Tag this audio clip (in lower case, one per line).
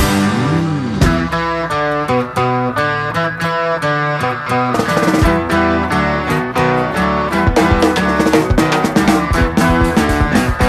rock music
psychedelic rock
music